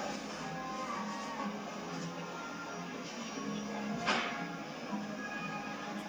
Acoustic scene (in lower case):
cafe